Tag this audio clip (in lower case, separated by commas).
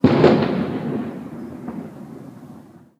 fireworks, explosion